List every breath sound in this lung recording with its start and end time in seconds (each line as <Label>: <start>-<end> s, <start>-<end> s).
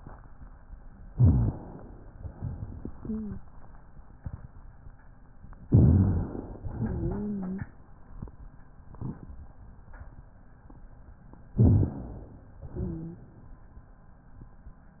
Inhalation: 1.10-2.15 s, 5.66-6.67 s, 11.54-12.59 s
Exhalation: 2.17-3.46 s, 6.67-7.71 s, 12.63-13.67 s
Wheeze: 2.95-3.44 s, 6.75-7.67 s, 12.73-13.27 s
Rhonchi: 1.08-1.57 s, 5.70-6.29 s, 11.54-12.33 s